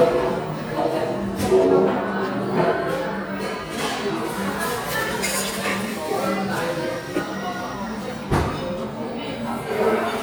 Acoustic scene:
cafe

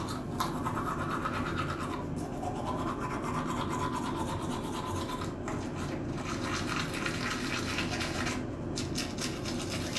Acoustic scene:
restroom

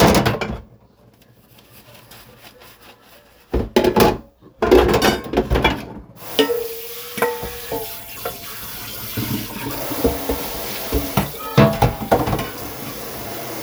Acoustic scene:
kitchen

